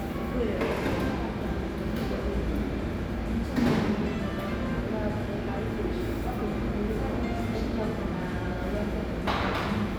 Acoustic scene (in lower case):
cafe